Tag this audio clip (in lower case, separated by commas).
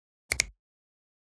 hands, finger snapping